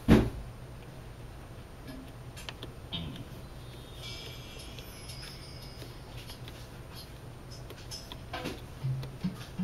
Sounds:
music
drum machine

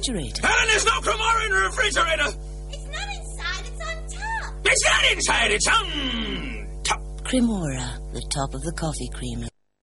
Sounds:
speech

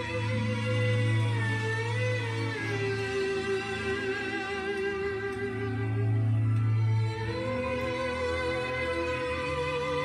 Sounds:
playing theremin

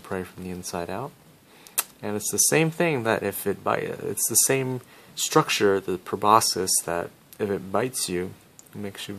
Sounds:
speech

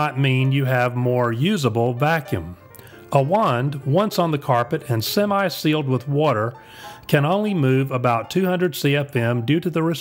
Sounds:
music
speech

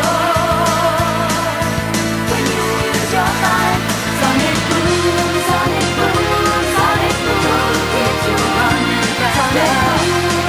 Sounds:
rhythm and blues
music

